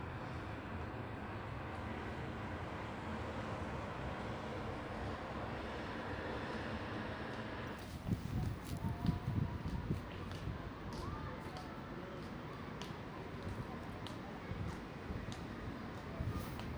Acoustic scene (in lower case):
residential area